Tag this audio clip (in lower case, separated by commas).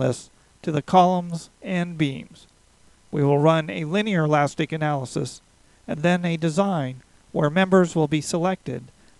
speech